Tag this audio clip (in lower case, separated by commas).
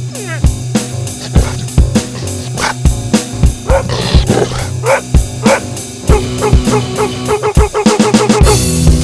music, yip, animal, dog, domestic animals, bow-wow